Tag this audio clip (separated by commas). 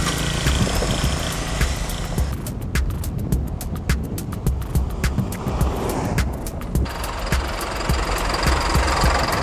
Idling, Car, Vehicle